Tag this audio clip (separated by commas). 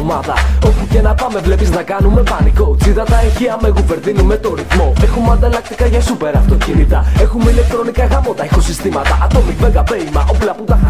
Music